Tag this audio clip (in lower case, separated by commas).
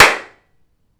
clapping, hands